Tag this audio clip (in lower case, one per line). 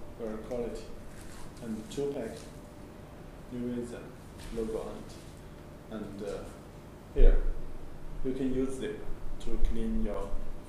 speech